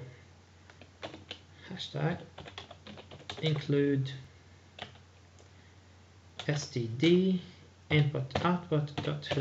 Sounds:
Speech, inside a small room

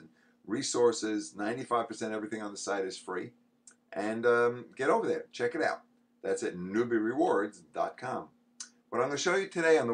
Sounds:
Speech

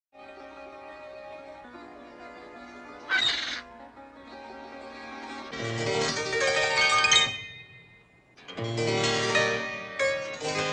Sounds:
Piano, Keyboard (musical)

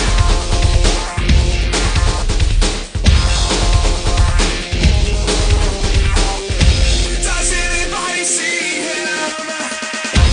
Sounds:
Music

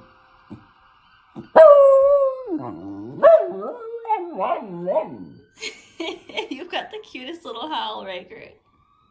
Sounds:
dog howling

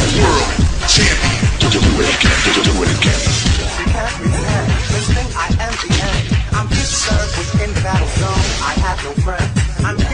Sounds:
Music

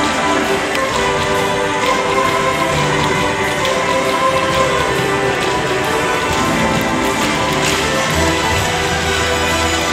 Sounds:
tap dancing

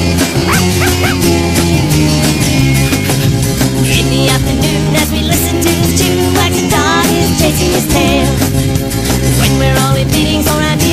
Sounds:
Music, Dog

